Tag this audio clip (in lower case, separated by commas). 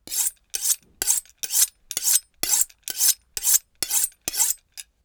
silverware, home sounds